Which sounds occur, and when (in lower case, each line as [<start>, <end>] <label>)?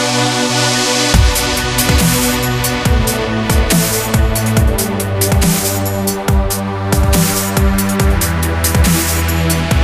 [0.00, 9.83] music